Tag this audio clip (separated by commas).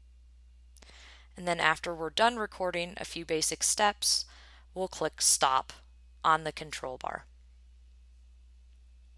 Speech